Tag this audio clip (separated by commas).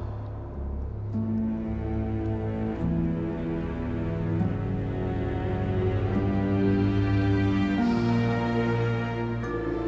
Music